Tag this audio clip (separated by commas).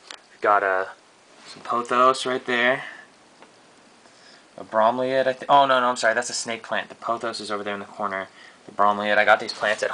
Speech